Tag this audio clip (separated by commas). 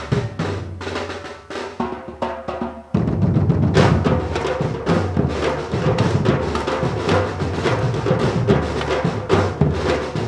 Drum, Percussion, Drum roll